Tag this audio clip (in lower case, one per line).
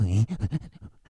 respiratory sounds
breathing